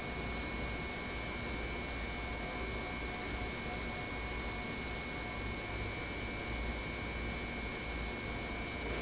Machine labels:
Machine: pump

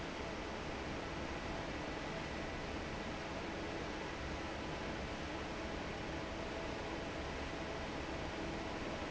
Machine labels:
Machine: fan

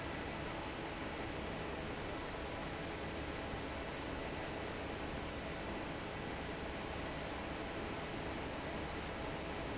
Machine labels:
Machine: fan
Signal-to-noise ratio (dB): 0 dB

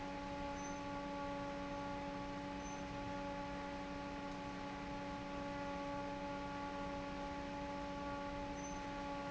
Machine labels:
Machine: fan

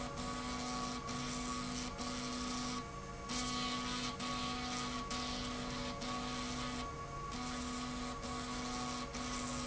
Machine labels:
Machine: slide rail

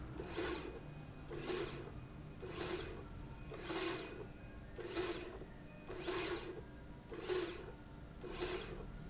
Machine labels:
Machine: slide rail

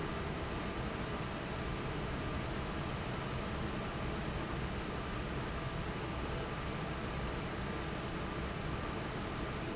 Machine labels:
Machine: fan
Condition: normal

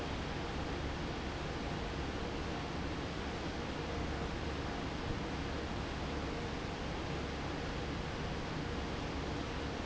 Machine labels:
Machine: fan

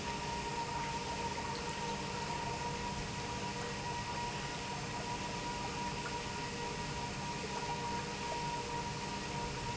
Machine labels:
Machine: pump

